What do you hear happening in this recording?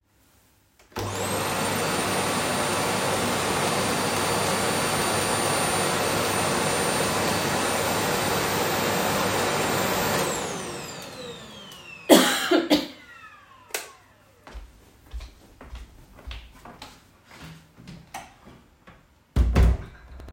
After I got done using my vacuum cleaner, I turned it off. I coughed once before turning off the lights. I walked towards the door to leave my bedroom and after opening the door I closed it right behind me.